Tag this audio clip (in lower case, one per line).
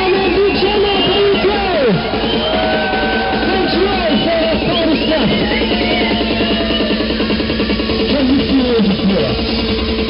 speech
music